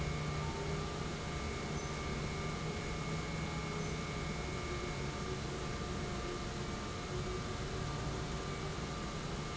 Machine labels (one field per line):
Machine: pump